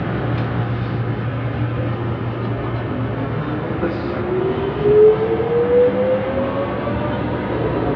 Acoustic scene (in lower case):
subway train